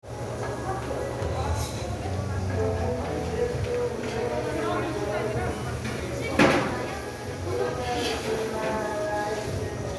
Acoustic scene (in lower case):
cafe